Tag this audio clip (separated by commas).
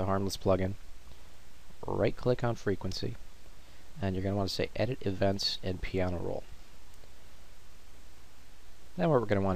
Speech